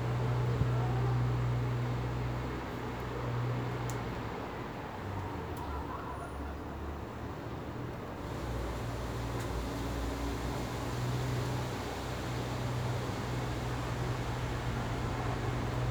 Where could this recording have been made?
in a residential area